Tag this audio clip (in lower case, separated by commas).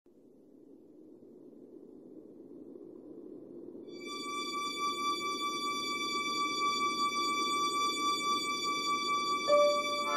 music